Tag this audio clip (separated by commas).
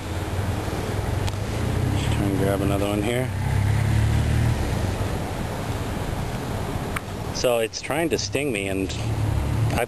Speech, outside, urban or man-made